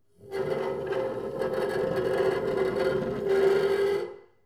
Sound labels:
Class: furniture moving; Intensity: medium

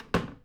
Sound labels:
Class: cupboard; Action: closing; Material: wooden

